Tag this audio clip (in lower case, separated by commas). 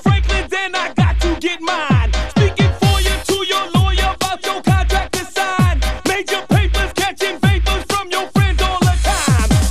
music